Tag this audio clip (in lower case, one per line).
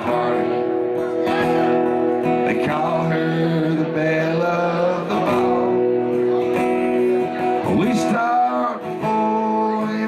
music
singing
country